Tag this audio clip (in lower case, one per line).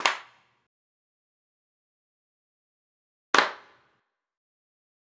clapping
hands